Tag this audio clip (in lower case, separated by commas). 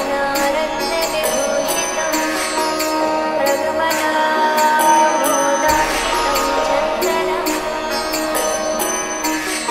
music, mantra